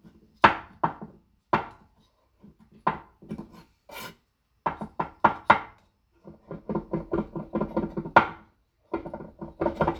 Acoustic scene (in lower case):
kitchen